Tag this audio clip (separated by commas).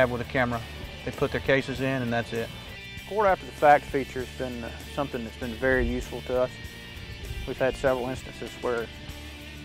Music, Speech